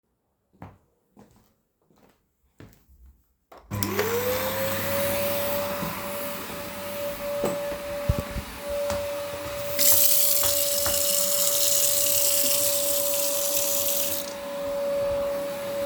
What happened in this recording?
My roommate started vacuuming in the living room. I walked to the kitchen and turned on the faucet to fill a glass of water.